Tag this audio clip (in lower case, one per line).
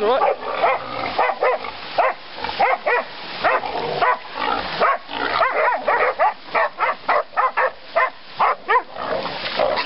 speech
oink